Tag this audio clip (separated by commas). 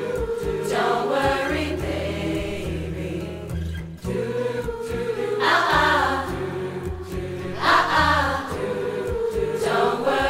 singing choir